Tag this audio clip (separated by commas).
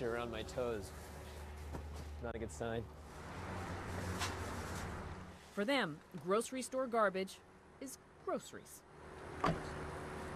Speech